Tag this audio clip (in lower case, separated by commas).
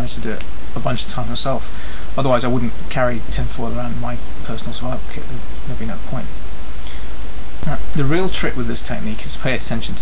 speech